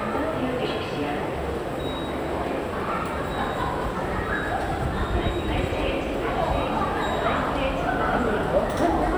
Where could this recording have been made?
in a subway station